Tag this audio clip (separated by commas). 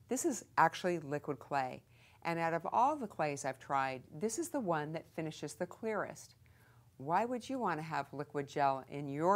Speech